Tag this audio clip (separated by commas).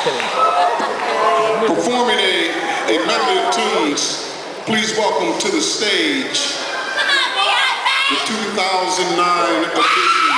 Crowd